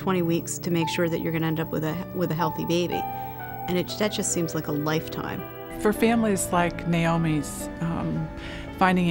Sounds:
Speech, Music

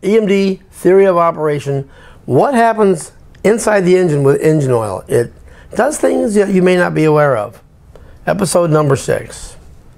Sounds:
Speech

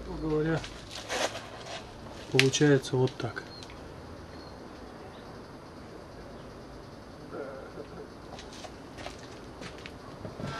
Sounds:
Speech

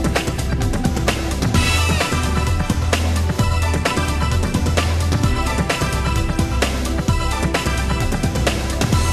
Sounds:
Music

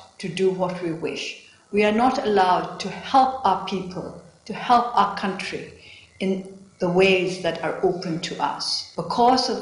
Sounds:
Speech, Female speech

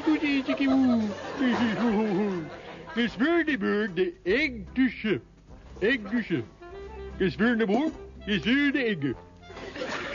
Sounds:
Speech, Music

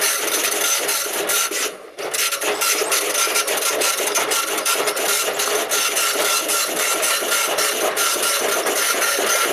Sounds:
Printer

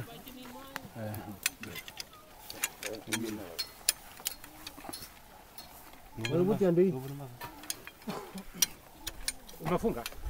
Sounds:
Speech

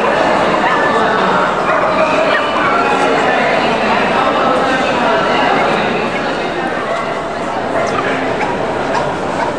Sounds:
Speech, Yip

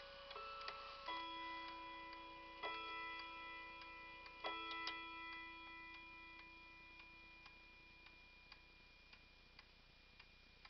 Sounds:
Tick-tock

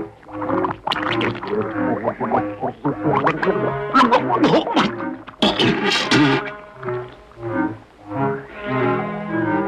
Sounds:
Music

